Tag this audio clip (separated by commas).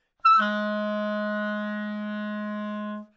Musical instrument, woodwind instrument, Music